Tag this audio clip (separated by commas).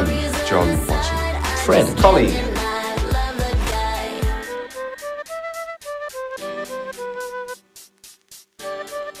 Speech, Music